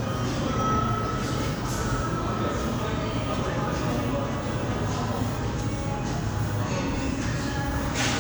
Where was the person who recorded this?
in a cafe